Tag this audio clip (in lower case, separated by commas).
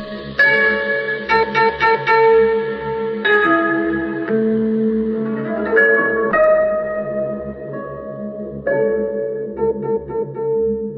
music, inside a large room or hall